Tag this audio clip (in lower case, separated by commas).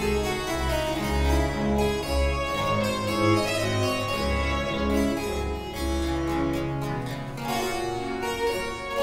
playing harpsichord